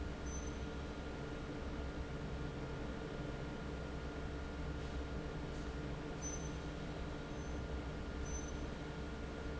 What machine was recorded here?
fan